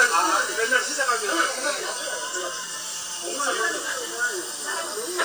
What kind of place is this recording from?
restaurant